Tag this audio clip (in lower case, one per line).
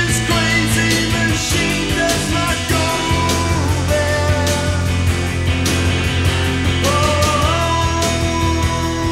music
psychedelic rock
singing